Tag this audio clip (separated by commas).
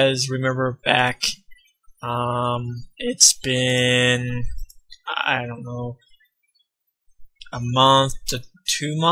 Speech